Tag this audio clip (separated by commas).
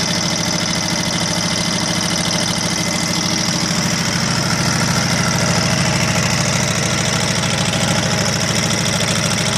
Engine, Heavy engine (low frequency)